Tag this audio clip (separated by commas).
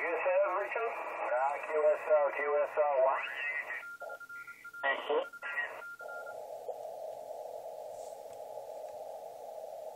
Radio, Speech